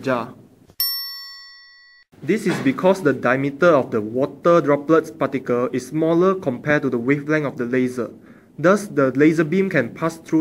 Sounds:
Speech, inside a small room

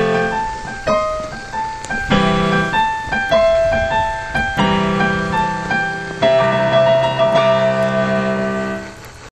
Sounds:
Music

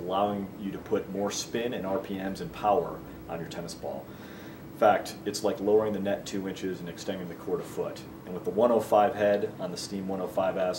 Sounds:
Speech

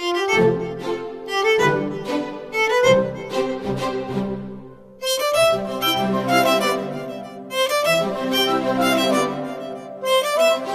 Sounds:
Music, fiddle

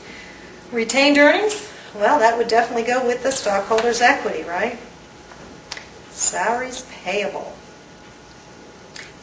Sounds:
inside a small room, Speech

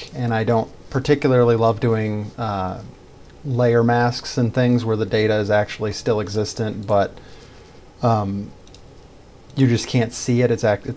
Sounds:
Speech

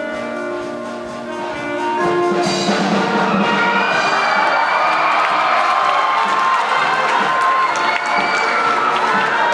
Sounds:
Orchestra, Music

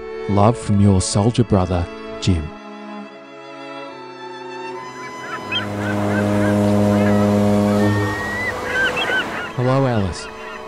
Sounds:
Speech, Music

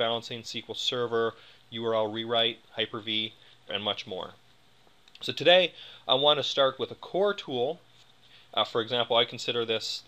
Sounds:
Speech

